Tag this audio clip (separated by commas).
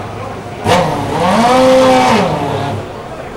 Vehicle, Engine, auto racing, Accelerating, Car, Motor vehicle (road)